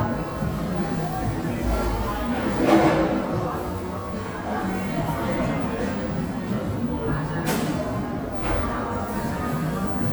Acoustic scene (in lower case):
cafe